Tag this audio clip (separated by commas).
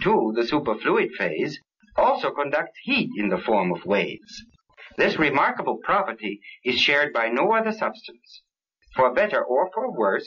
Speech